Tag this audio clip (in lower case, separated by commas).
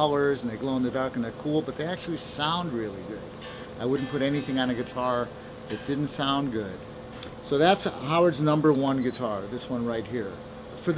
guitar, musical instrument, music, bass guitar